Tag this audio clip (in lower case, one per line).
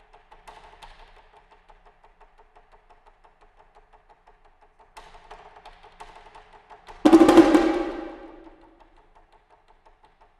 percussion
wood block
music